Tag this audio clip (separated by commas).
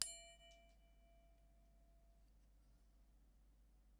Bell